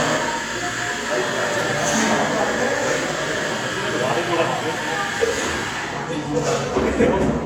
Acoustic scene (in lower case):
cafe